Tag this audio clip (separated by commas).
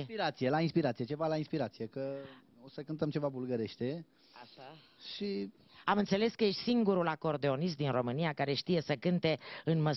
Speech